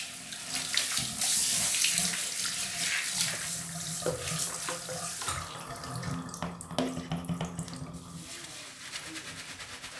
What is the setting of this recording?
restroom